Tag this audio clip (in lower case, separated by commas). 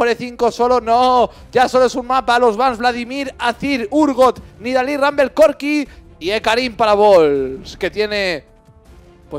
music, speech